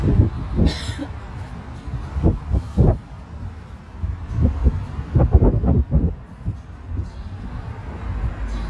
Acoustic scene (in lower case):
car